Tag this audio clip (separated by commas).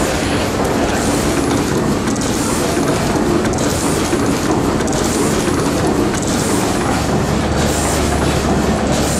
Engine